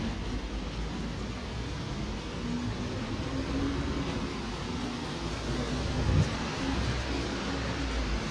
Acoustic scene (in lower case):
residential area